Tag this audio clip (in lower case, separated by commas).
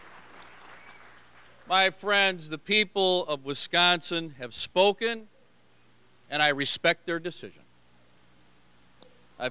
narration, male speech, speech